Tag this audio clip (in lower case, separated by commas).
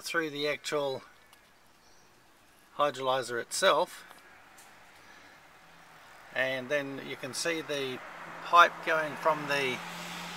speech